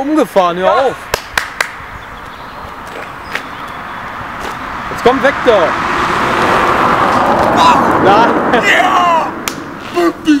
An adult male speaks and a car engine is heard